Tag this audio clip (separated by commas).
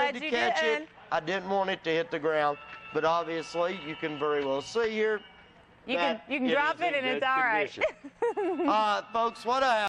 Speech, Music